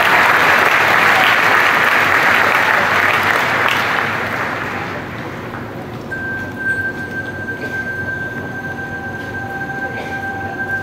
A crowd applauds, followed by a chime